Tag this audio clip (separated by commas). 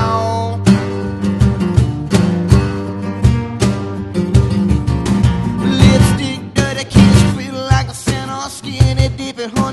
Music